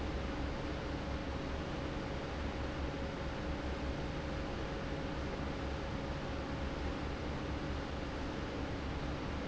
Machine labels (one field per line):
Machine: fan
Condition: normal